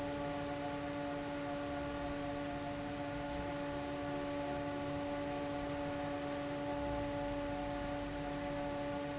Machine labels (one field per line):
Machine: fan